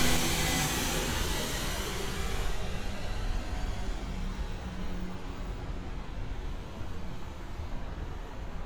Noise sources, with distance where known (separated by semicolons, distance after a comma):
large-sounding engine, near